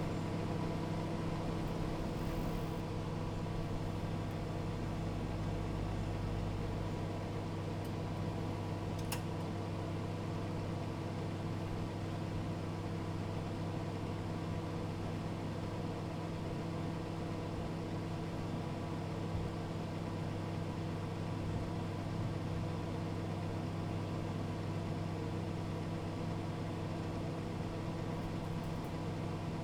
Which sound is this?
microwave oven